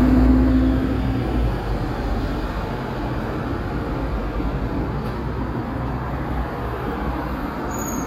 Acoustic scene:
street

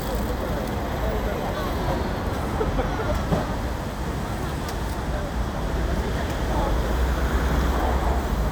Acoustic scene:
street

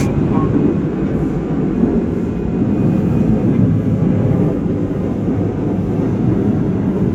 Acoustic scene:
subway train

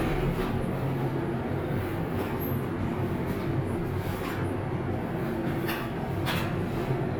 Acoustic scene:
elevator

